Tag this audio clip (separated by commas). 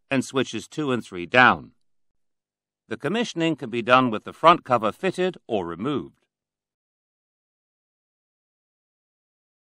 monologue, Speech